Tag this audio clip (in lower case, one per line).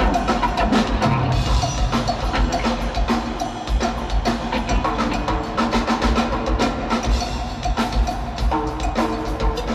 musical instrument
bass drum
drum kit
music
drum
percussion